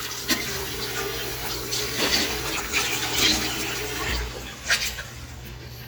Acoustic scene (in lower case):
restroom